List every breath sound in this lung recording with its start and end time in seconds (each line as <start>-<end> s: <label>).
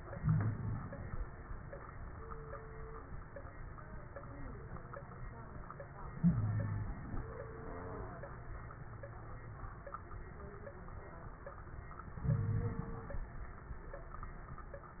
0.00-1.13 s: inhalation
0.19-0.79 s: wheeze
6.12-7.23 s: inhalation
6.22-6.88 s: wheeze
12.21-13.23 s: inhalation
12.27-12.80 s: wheeze